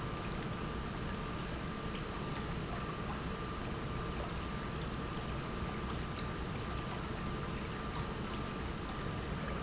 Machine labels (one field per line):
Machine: pump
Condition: normal